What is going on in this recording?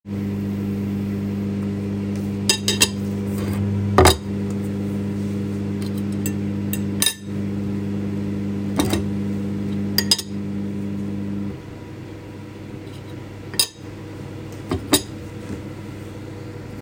Microwave was turned on while I was using cutlery with dishes